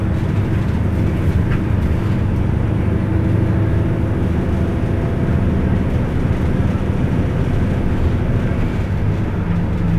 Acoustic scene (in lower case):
bus